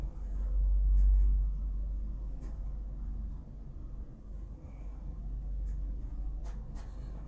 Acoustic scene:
elevator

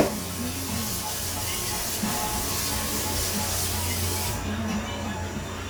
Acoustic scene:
cafe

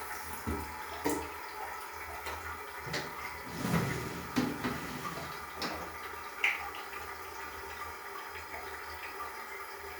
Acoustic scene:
restroom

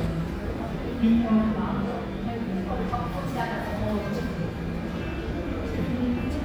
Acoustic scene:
cafe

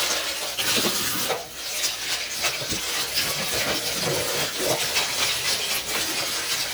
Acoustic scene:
kitchen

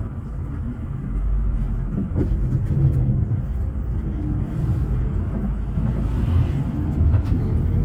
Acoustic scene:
bus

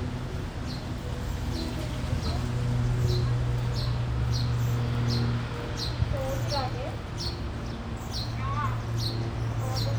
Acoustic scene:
residential area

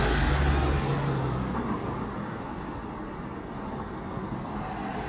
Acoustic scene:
residential area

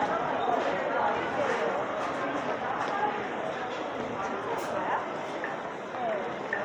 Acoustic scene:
crowded indoor space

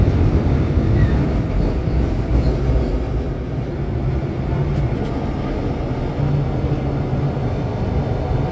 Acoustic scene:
subway train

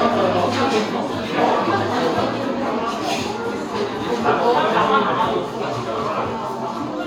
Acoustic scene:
cafe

